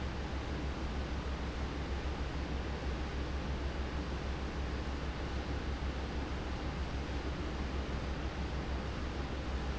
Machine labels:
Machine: fan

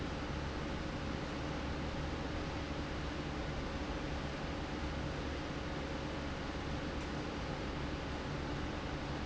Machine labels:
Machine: fan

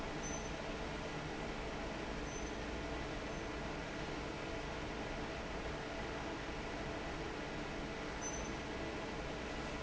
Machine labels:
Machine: fan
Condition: normal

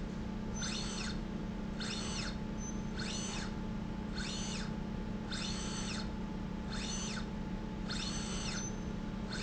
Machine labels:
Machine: slide rail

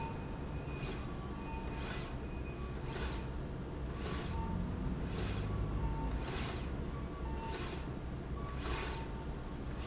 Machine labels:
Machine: slide rail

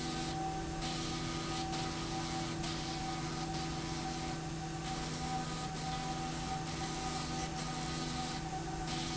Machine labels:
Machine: slide rail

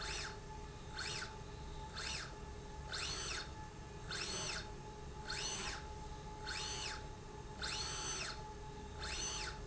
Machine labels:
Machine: slide rail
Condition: normal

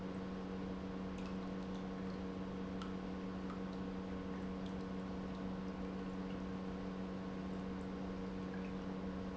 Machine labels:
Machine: pump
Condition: normal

